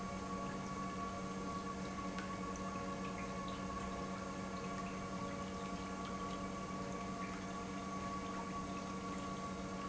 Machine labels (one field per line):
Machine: pump